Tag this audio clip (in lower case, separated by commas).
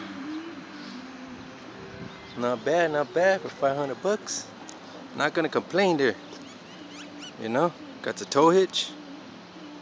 speech